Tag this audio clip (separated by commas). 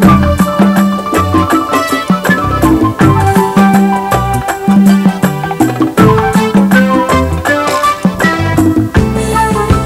Music, Middle Eastern music